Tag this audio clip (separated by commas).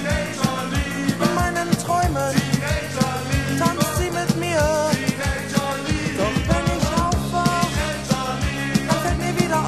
Music, Guitar, Musical instrument